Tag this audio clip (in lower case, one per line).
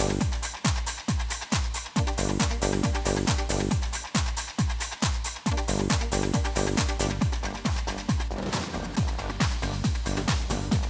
playing synthesizer